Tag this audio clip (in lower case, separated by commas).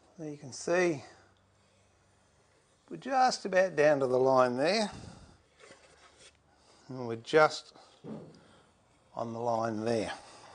planing timber